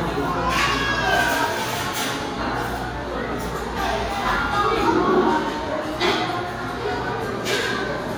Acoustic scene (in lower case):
restaurant